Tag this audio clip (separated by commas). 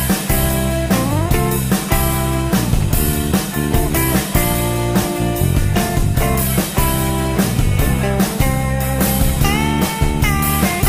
Music, Rock music, Psychedelic rock